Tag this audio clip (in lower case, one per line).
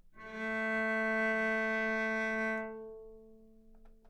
music
musical instrument
bowed string instrument